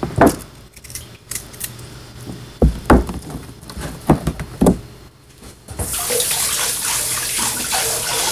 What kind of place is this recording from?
kitchen